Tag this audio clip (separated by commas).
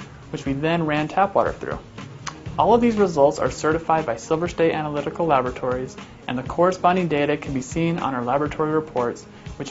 Speech, Music